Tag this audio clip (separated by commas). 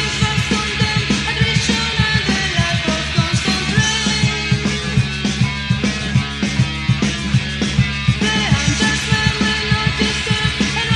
Music